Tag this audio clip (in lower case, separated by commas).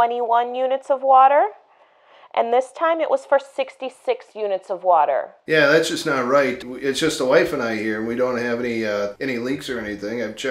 speech